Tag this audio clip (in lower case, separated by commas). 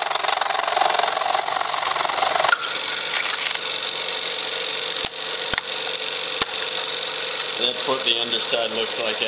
inside a small room, tools, speech